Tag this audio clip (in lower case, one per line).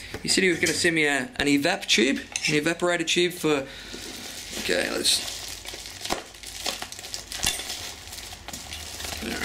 speech